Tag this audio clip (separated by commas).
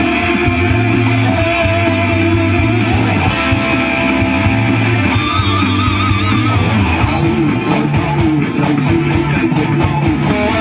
Electric guitar, Plucked string instrument, Musical instrument, Music, Guitar, Bass guitar, Strum